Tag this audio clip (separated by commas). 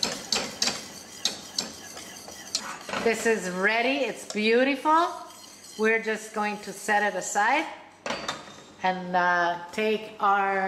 Stir